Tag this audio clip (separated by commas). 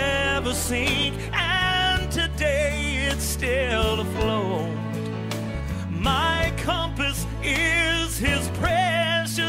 Music